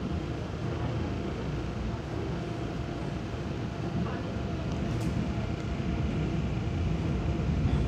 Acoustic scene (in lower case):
subway train